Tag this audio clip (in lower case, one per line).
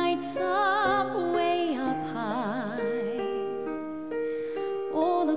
music